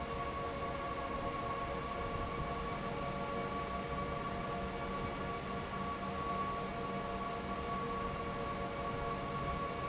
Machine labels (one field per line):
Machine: fan